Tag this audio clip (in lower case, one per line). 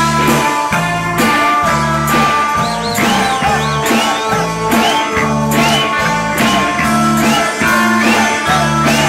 music